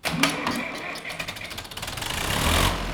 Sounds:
mechanisms, engine

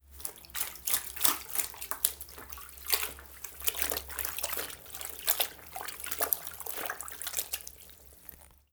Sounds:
dribble, liquid, pour, splash

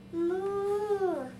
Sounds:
speech, human voice

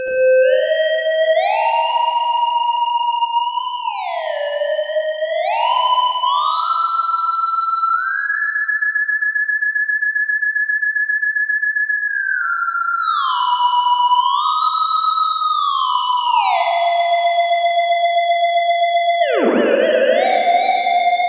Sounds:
music, musical instrument

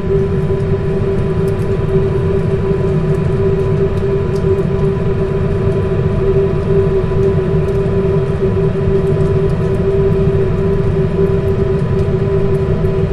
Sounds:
rain, water

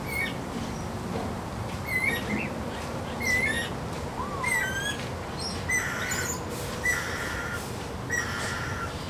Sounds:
wild animals, animal, bird

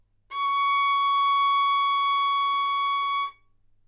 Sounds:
bowed string instrument, musical instrument, music

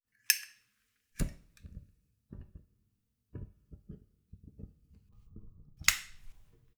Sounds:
fire

